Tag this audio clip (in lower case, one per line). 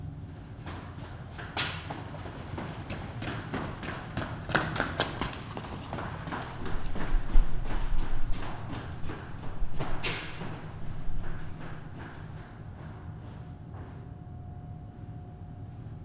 run